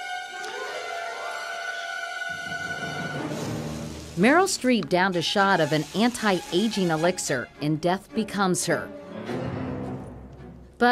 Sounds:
speech
music

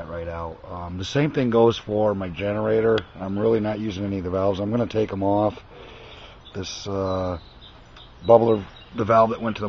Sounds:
speech

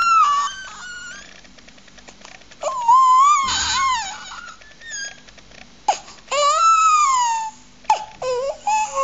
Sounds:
sobbing
people sobbing

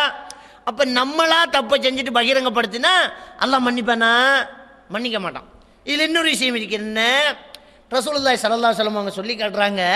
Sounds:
speech

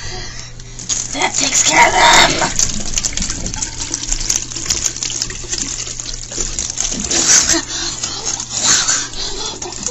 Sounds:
water
faucet
sink (filling or washing)

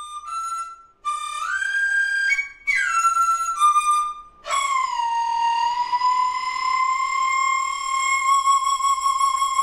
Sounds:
playing flute
musical instrument
inside a small room
flute
wind instrument
music

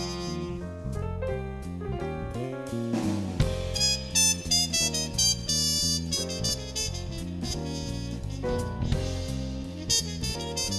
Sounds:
music

